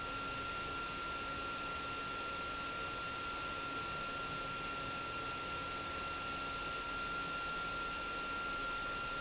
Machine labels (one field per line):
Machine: pump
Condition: abnormal